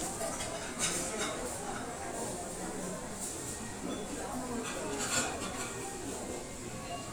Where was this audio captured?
in a restaurant